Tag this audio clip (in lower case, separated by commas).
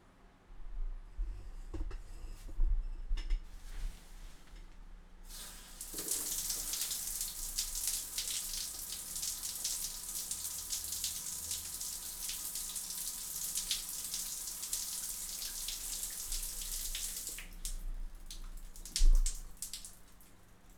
drip, pour, water tap, home sounds, dribble, bathtub (filling or washing), liquid